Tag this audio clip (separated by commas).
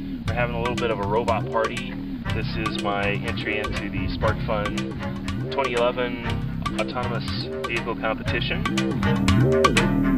Speech, Music